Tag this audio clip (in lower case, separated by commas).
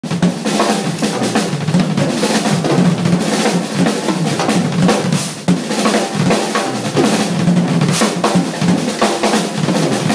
percussion, drum, drum roll, snare drum, drum kit, bass drum, rimshot